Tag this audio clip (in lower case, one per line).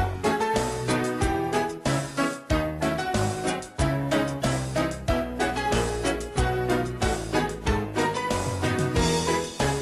music